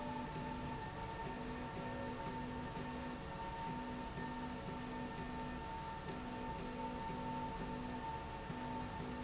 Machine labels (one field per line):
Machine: slide rail